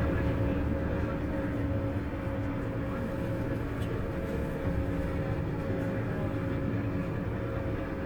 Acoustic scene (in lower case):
bus